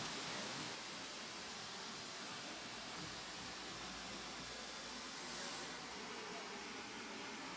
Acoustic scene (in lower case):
park